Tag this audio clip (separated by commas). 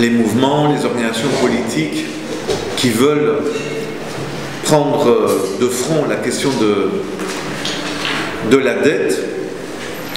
Speech